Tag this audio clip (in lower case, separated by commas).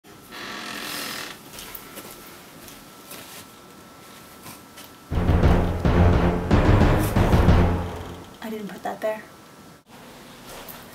speech, inside a small room, music